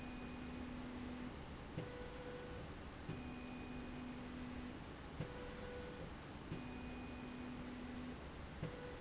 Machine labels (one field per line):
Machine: slide rail